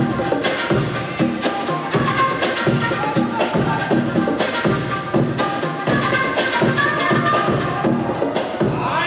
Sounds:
Music

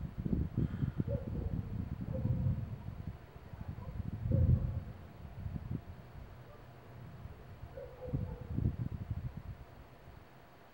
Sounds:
Eruption

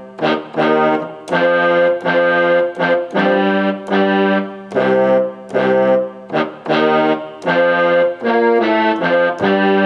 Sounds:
Music, Harpsichord

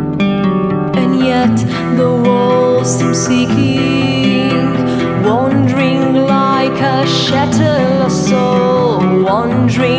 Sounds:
Music, Theme music, Soul music

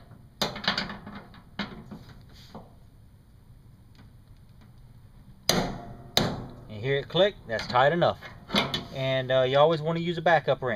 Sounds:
Speech

